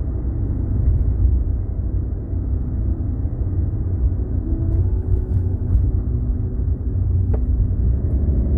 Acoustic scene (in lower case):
car